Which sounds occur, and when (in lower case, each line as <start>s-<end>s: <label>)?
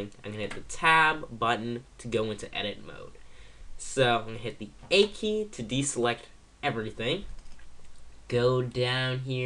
0.0s-1.8s: male speech
0.0s-9.4s: mechanisms
0.4s-0.6s: generic impact sounds
2.0s-3.1s: male speech
3.1s-3.7s: breathing
3.7s-4.7s: male speech
4.8s-4.9s: generic impact sounds
4.9s-6.3s: male speech
6.6s-7.3s: male speech
7.3s-7.7s: clicking
7.8s-8.0s: clicking
8.3s-9.4s: male speech